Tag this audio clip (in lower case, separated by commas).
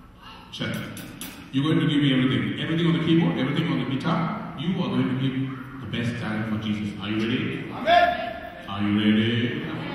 speech